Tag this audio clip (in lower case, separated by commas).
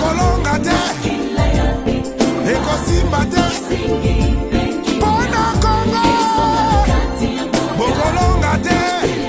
music of africa, singing, music